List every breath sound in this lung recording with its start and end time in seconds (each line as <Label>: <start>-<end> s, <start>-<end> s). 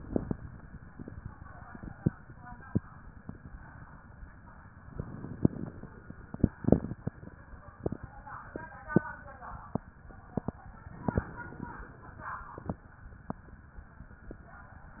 Inhalation: 0.00-0.37 s, 4.84-5.92 s, 11.11-12.19 s